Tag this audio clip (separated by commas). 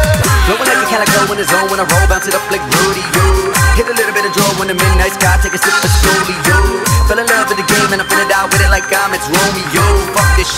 Dubstep, Music